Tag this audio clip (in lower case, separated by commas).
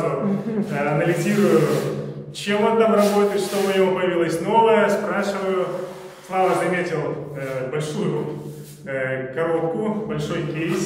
speech